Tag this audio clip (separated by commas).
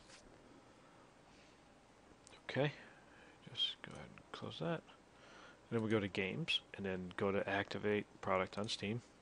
Speech